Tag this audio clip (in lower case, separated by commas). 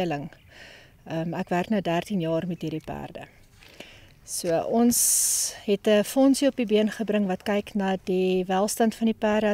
speech